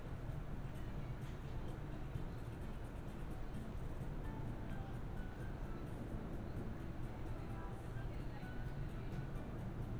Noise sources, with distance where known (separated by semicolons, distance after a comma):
background noise